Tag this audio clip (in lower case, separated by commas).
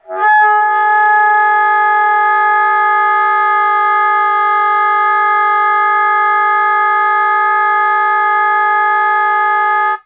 musical instrument, wind instrument, music